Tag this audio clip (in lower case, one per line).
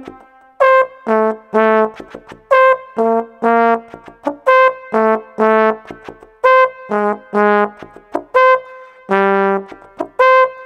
playing trombone